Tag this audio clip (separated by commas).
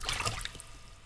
Liquid, Splash